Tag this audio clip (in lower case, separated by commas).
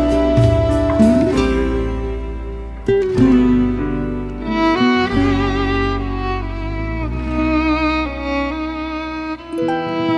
music, sad music